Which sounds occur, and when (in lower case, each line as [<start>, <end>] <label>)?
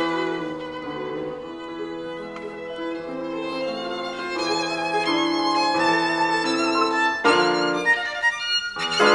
[0.01, 9.14] music